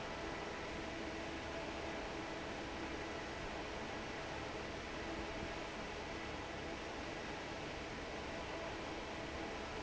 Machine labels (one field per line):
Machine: fan